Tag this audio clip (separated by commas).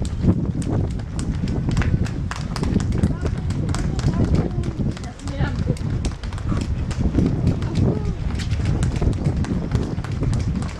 Run, Speech